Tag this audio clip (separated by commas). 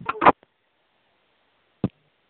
Telephone, Alarm